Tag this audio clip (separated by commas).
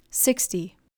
Female speech, Human voice, Speech